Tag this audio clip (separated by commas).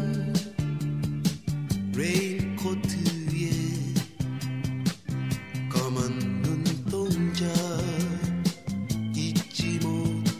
Music